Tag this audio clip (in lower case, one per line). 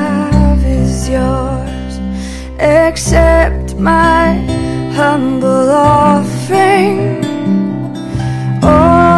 music